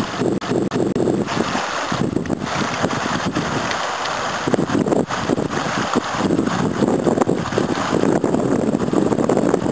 A stream is flowing with water